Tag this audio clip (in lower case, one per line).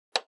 tick